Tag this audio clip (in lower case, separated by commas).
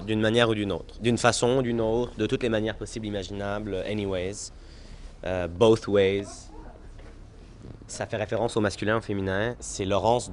speech